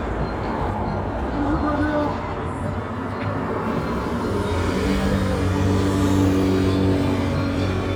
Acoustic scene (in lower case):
street